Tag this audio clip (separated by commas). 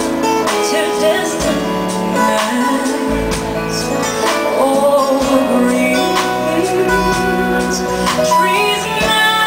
Music